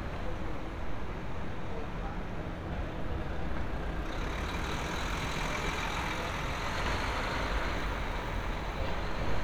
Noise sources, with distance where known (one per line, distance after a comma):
large-sounding engine, near